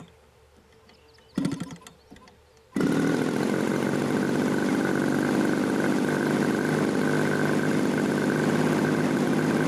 Someone starting an engine